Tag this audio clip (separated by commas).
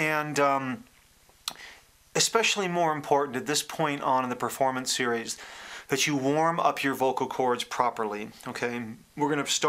Speech